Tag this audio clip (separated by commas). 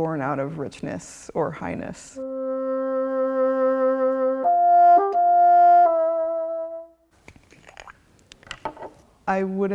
playing bassoon